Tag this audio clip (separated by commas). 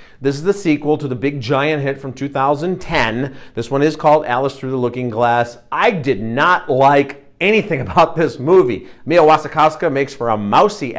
Speech